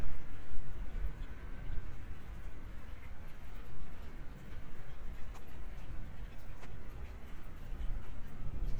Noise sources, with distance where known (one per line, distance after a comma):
background noise